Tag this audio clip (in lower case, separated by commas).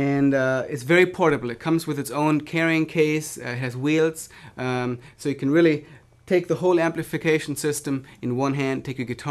speech